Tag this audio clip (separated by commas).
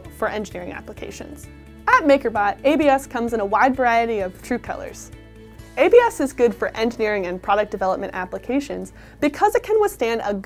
Music, Speech